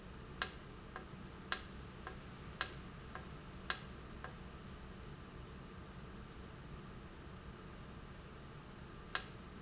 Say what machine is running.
valve